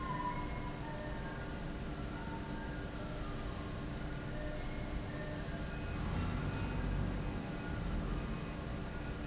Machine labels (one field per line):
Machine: fan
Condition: abnormal